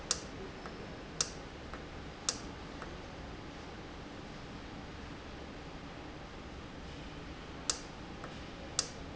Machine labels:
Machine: valve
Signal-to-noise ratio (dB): 0 dB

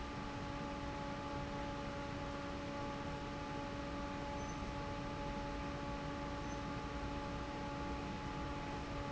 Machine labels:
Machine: fan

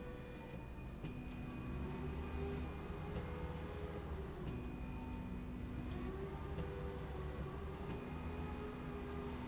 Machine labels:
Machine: slide rail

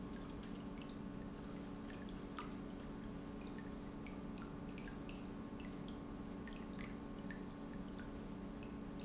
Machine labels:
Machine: pump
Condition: normal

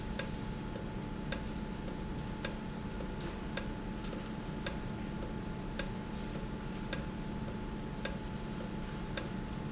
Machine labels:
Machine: valve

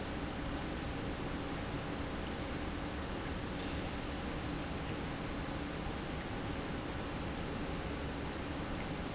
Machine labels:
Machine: pump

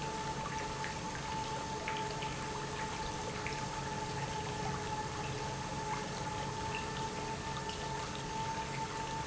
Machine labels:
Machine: pump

